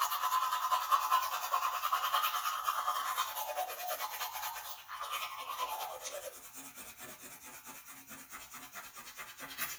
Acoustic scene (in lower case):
restroom